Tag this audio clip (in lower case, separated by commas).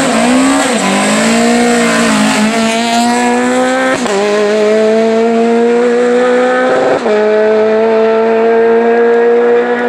vehicle, car, race car, motor vehicle (road)